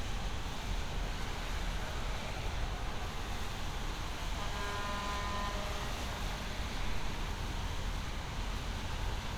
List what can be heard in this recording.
medium-sounding engine, car horn